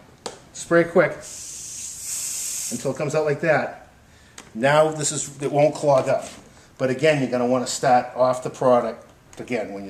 A person talking and spraying from an aerosol